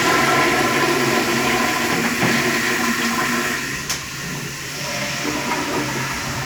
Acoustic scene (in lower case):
restroom